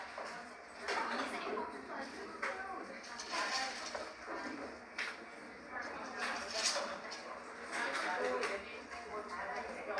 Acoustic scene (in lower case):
cafe